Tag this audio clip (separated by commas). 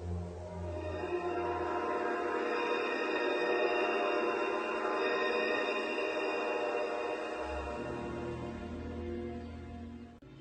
Music